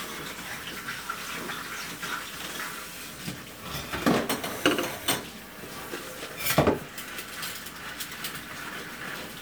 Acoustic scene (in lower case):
kitchen